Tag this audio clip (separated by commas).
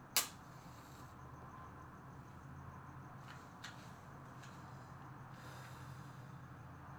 Fire